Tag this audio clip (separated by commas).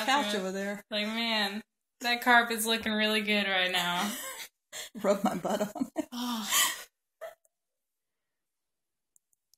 Speech